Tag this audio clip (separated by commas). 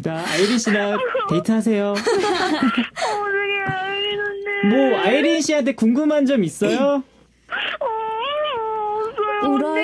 Speech